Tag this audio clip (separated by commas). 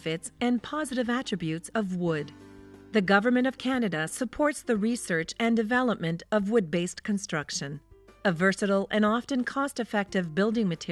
Music, Speech